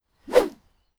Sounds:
swish

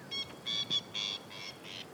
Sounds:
Animal, Wild animals, Bird

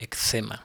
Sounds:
Human voice

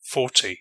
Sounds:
Male speech, Speech, Human voice

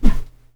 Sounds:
Whoosh

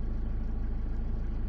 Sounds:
Engine, Motor vehicle (road), Idling, Car, Vehicle

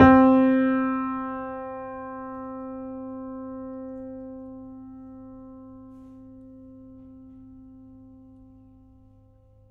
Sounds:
Musical instrument, Music, Keyboard (musical), Piano

